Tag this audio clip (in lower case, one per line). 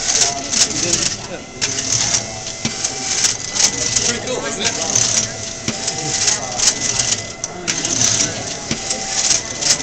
speech